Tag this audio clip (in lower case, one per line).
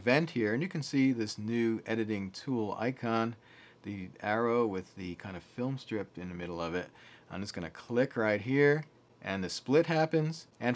speech